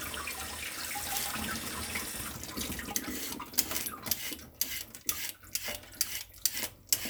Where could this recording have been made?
in a kitchen